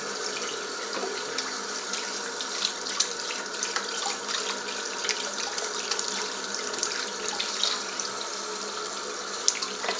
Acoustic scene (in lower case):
restroom